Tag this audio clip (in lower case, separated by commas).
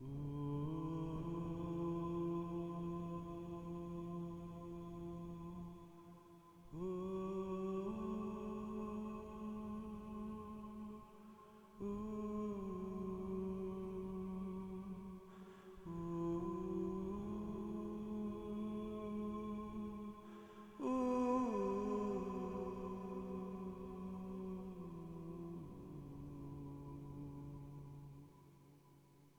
singing, human voice